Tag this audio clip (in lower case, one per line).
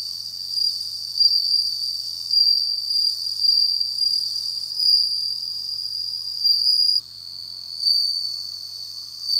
cricket chirping